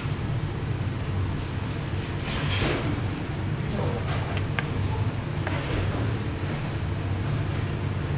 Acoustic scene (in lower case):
restaurant